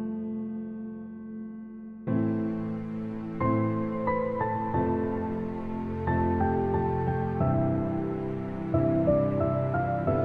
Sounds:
music

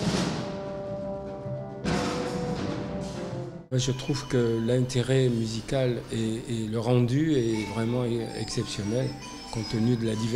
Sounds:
speech, music

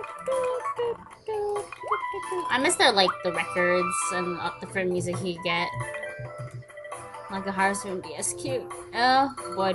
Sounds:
speech, music

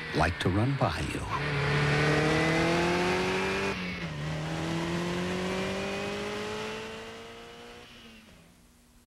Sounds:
speech

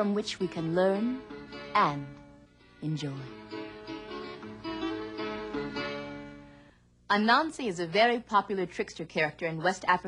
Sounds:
zither

